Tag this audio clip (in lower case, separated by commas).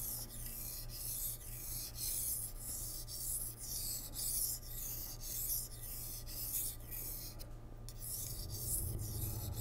sharpen knife